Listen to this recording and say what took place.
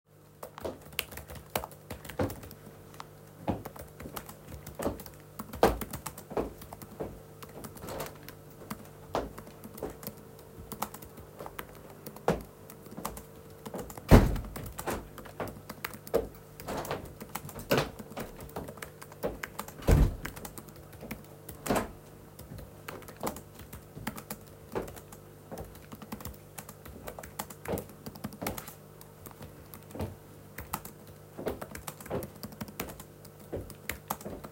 Typing on the keyboard as someone walks across the room and opens a window.